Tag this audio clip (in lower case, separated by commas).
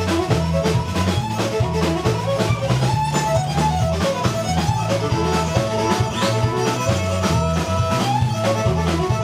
music, fiddle, musical instrument